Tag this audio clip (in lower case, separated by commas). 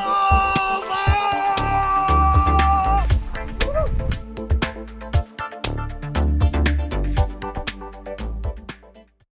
speech, music